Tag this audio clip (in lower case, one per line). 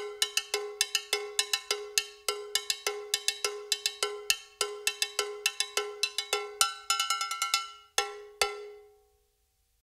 cowbell